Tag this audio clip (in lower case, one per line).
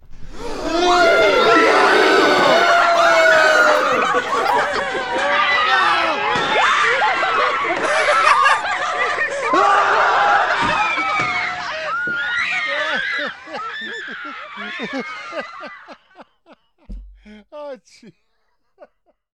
laughter
human voice